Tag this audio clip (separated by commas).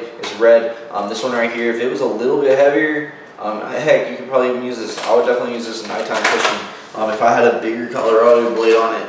Speech